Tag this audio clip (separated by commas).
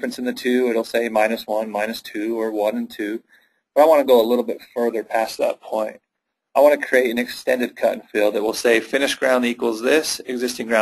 Speech